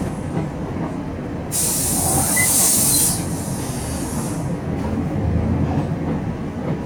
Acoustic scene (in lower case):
bus